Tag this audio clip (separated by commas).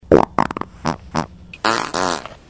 Fart